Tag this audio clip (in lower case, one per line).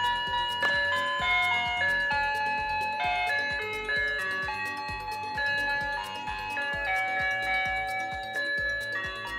ice cream truck